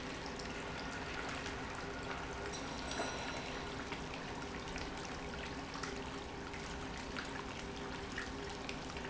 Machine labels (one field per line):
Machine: pump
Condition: normal